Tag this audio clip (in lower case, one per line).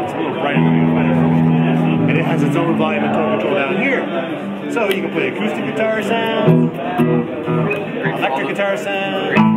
speech
guitar
musical instrument
music
electric guitar